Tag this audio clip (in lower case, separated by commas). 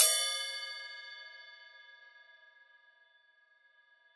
percussion, musical instrument, crash cymbal, music, cymbal